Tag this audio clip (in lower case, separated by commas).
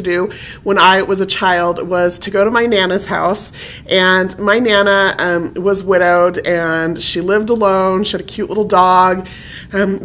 speech